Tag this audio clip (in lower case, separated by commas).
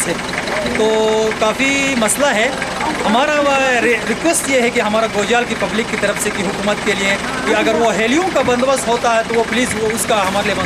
speech